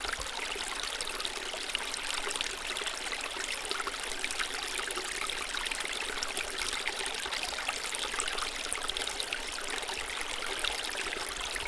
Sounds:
stream, water

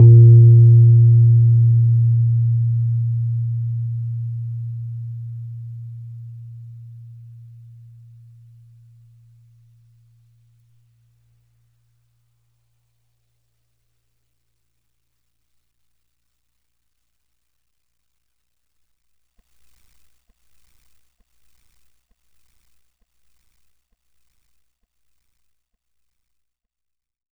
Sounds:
musical instrument, music, keyboard (musical), piano

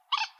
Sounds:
bird, animal, squeak, wild animals

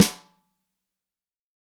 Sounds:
snare drum, musical instrument, drum, percussion, music

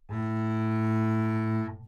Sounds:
bowed string instrument, musical instrument, music

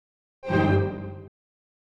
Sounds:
music, musical instrument

